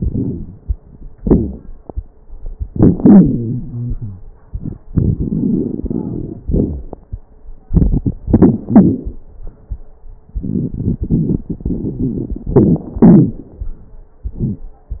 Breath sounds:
Inhalation: 0.00-0.59 s, 2.62-2.94 s, 4.47-6.40 s, 7.69-8.17 s, 10.36-11.49 s, 12.49-12.88 s
Exhalation: 1.15-1.70 s, 2.98-4.23 s, 6.47-6.94 s, 8.23-9.12 s, 11.49-12.47 s, 12.95-13.41 s
Wheeze: 1.15-1.70 s, 2.98-4.23 s, 6.47-6.94 s
Crackles: 0.00-0.59 s, 2.62-2.94 s, 4.47-6.40 s, 7.69-8.17 s, 8.23-9.12 s, 10.37-11.43 s, 11.49-12.47 s, 12.49-12.88 s, 12.95-13.41 s

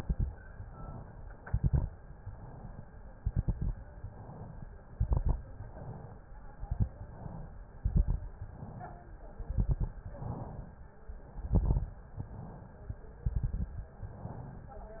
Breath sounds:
Inhalation: 0.39-1.35 s, 2.00-2.97 s, 3.82-4.78 s, 5.46-6.42 s, 7.00-7.75 s, 8.45-9.35 s, 10.12-11.03 s, 12.01-13.13 s, 13.96-14.97 s
Exhalation: 0.00-0.32 s, 1.41-1.92 s, 3.22-3.71 s, 4.92-5.41 s, 6.48-6.97 s, 7.79-8.28 s, 9.45-9.94 s, 11.38-11.87 s, 13.21-13.89 s
Crackles: 0.00-0.32 s, 1.41-1.92 s, 3.22-3.71 s, 4.92-5.41 s, 6.48-6.97 s, 7.79-8.28 s, 9.45-9.94 s, 11.38-11.87 s, 13.21-13.89 s

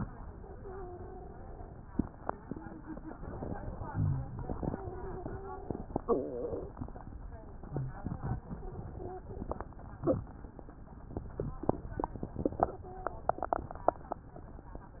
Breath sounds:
Inhalation: 3.13-3.87 s
Exhalation: 3.89-4.34 s
Wheeze: 0.49-1.41 s, 7.74-8.01 s, 8.52-9.52 s, 12.60-13.39 s
Rhonchi: 3.89-4.34 s
Crackles: 3.13-3.87 s

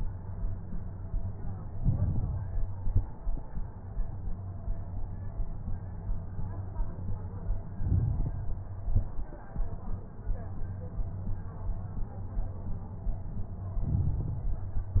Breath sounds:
Inhalation: 1.71-2.58 s, 7.73-8.61 s, 13.81-14.69 s
Exhalation: 2.68-3.21 s, 8.80-9.33 s
Crackles: 1.71-2.58 s, 2.68-3.21 s, 7.73-8.61 s, 8.80-9.33 s, 13.81-14.69 s

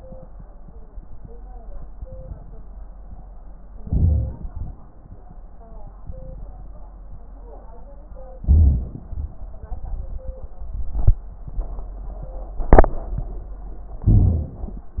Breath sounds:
Inhalation: 3.81-4.49 s, 8.43-9.06 s, 14.05-14.58 s
Exhalation: 4.52-4.76 s
Crackles: 3.81-4.49 s, 14.05-14.58 s

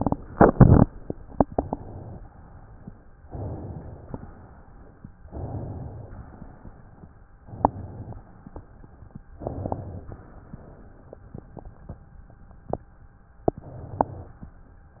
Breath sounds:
Inhalation: 1.25-2.28 s, 3.24-4.13 s, 5.29-6.19 s, 7.39-8.28 s, 9.35-10.24 s, 13.47-14.43 s
Exhalation: 2.28-2.98 s, 4.16-5.06 s, 6.21-7.11 s, 8.33-9.22 s, 10.25-11.20 s, 14.41-15.00 s

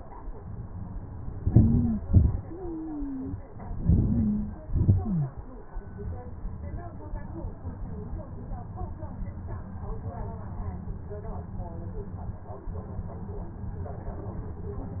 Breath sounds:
Inhalation: 1.48-2.02 s, 3.80-4.42 s
Exhalation: 2.12-2.49 s, 4.63-5.00 s
Stridor: 1.48-2.02 s, 2.12-2.49 s, 3.80-4.42 s, 4.63-5.00 s

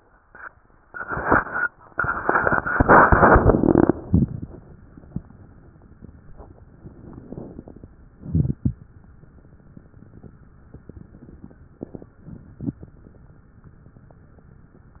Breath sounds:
Inhalation: 7.11-7.99 s
Exhalation: 8.10-8.98 s
Crackles: 7.09-7.97 s, 8.10-8.98 s

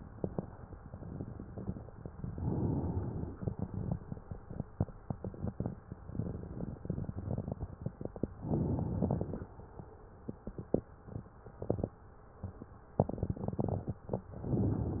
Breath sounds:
Inhalation: 2.22-3.35 s, 8.40-9.49 s, 14.42-15.00 s
Exhalation: 3.35-3.94 s

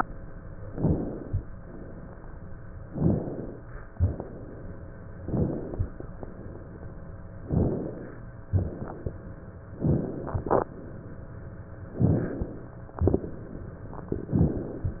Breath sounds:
Inhalation: 0.67-1.43 s, 2.89-3.58 s, 5.20-6.02 s, 7.45-8.26 s, 9.84-10.74 s, 11.87-12.77 s
Exhalation: 1.56-2.50 s, 3.93-4.79 s, 6.16-6.97 s, 8.48-9.38 s, 12.95-13.75 s
Crackles: 12.95-13.75 s

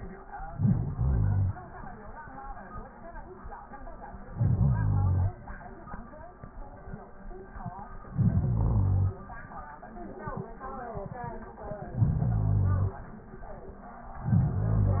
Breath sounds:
Inhalation: 0.50-1.62 s, 4.32-5.44 s, 8.11-9.23 s, 11.86-12.98 s, 14.19-15.00 s

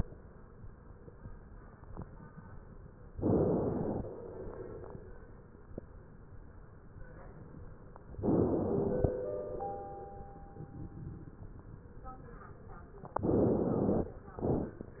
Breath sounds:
Inhalation: 3.19-4.10 s, 8.22-9.13 s, 13.24-14.16 s
Exhalation: 4.12-5.24 s, 9.18-10.30 s

